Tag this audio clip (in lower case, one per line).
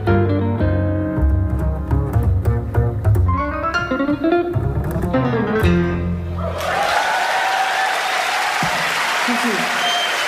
inside a large room or hall
music
speech
jazz